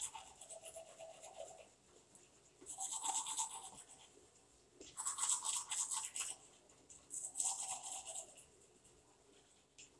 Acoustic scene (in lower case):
restroom